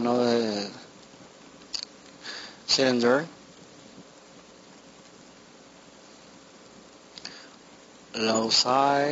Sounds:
Speech, inside a small room

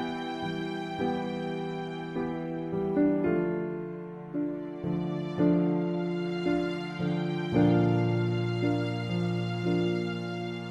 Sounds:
Sad music, Music

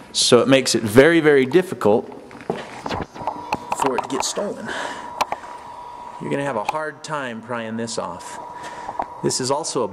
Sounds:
Pant

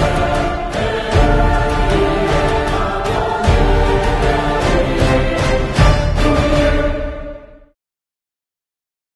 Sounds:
Music

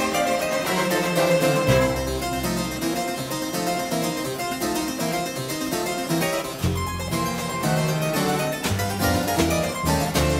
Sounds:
playing harpsichord

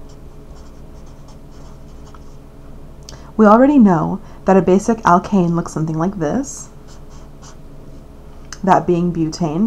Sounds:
Speech, inside a small room

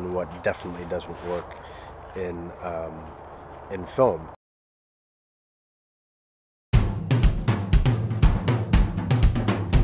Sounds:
Snare drum

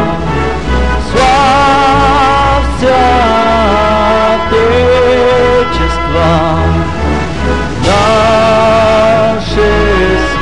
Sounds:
Male singing, Music

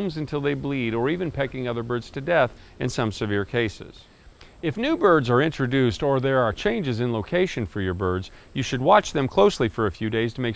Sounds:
Speech

